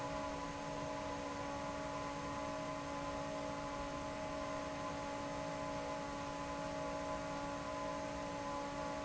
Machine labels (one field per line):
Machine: fan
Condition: normal